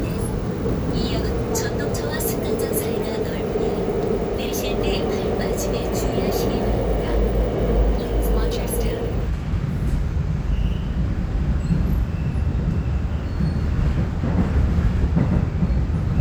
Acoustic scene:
subway train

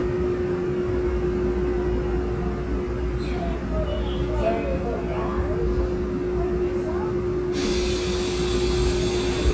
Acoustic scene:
subway train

